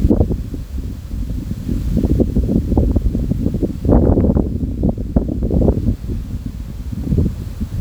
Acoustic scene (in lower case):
park